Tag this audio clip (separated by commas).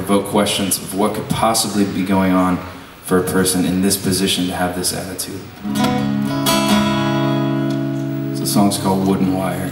Speech, Music